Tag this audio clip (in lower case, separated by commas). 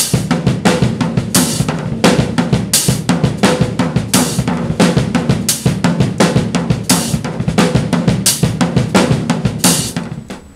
cymbal, music, drum kit, percussion, snare drum, drum, musical instrument